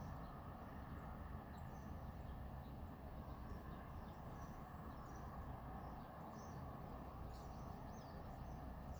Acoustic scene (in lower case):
residential area